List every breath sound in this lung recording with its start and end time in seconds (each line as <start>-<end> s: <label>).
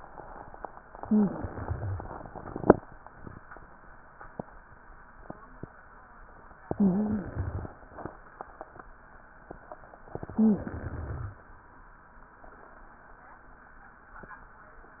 0.97-2.10 s: inhalation
0.99-1.49 s: wheeze
6.62-7.76 s: inhalation
6.72-7.18 s: wheeze
10.18-11.31 s: inhalation
10.33-10.79 s: wheeze